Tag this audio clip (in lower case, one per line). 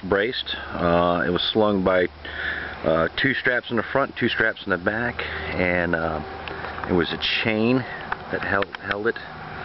speech